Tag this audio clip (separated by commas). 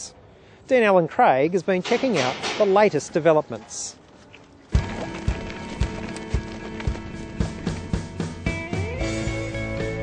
Speech, Music